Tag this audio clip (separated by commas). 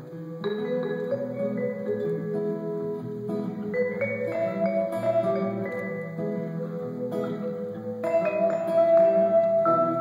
playing vibraphone